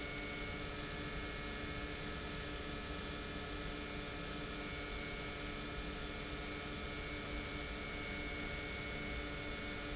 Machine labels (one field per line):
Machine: pump